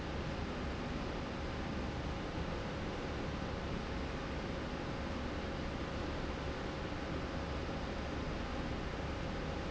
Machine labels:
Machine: slide rail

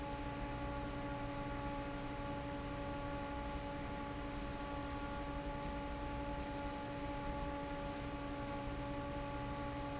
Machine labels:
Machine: fan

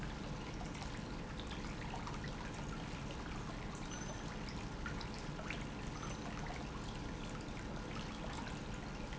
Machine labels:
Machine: pump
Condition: normal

